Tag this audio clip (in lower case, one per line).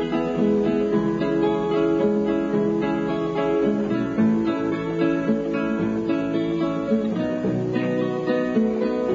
music
ukulele